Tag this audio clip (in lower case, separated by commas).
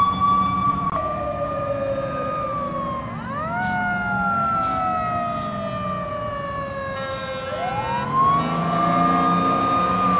siren, fire engine, emergency vehicle, police car (siren)